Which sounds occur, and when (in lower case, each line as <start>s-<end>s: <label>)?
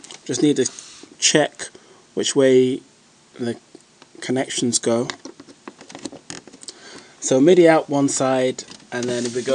0.0s-0.8s: generic impact sounds
0.0s-9.5s: background noise
0.3s-0.7s: male speech
0.6s-1.1s: breathing
1.1s-1.8s: male speech
2.1s-2.8s: male speech
3.3s-3.7s: male speech
3.9s-4.1s: generic impact sounds
4.1s-5.2s: male speech
5.0s-6.8s: generic impact sounds
6.7s-7.1s: breathing
7.3s-8.6s: male speech
8.5s-8.7s: generic impact sounds
8.9s-9.5s: male speech
9.0s-9.5s: generic impact sounds